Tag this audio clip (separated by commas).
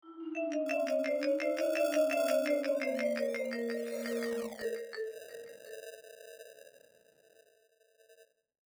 Musical instrument, Percussion, Music, xylophone, Mallet percussion